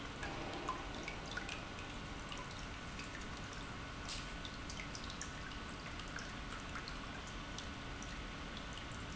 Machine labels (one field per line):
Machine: pump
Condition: normal